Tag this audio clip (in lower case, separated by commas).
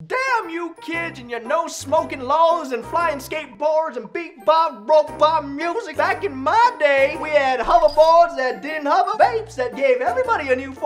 people screaming